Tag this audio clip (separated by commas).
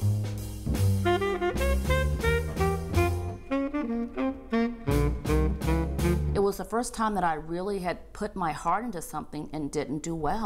Saxophone